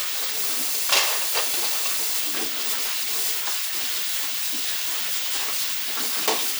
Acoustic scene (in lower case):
kitchen